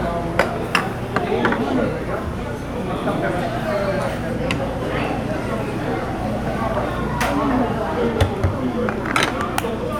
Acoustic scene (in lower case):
restaurant